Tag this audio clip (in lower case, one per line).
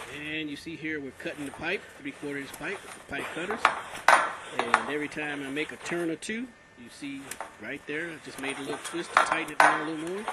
speech
inside a small room